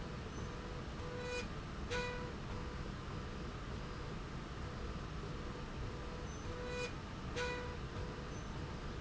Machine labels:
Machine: slide rail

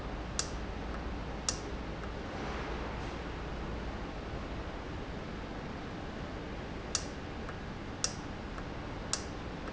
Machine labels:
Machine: valve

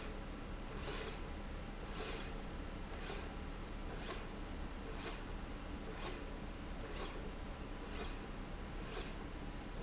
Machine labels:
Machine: slide rail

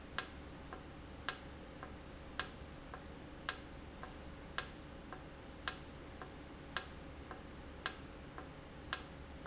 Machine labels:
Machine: valve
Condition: normal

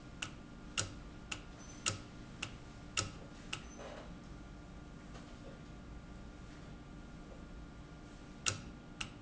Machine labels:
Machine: valve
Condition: normal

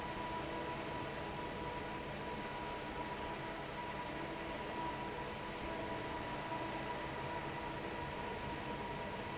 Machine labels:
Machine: fan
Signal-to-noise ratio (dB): 0 dB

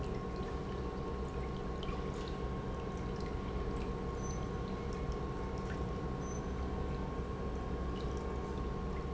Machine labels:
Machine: pump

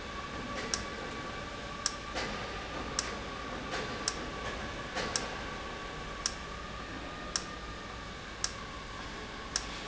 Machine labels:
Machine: valve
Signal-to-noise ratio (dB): -6 dB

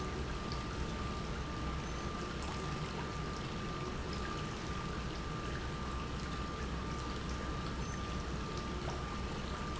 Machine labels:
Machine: pump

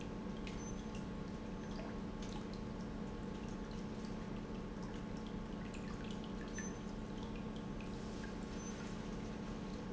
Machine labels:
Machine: pump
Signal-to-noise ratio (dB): 0 dB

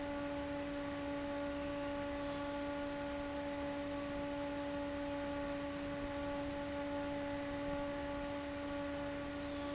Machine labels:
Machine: fan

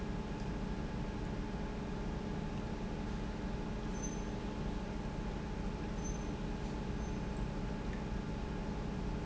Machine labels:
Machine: pump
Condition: normal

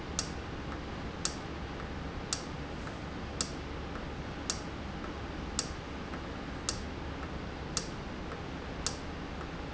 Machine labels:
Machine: valve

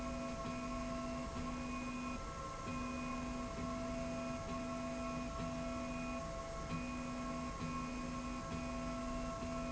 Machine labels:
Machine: slide rail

